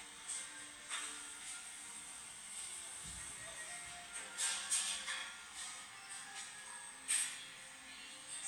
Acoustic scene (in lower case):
cafe